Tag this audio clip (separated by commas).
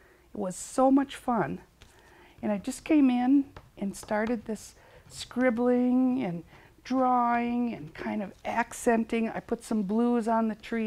Speech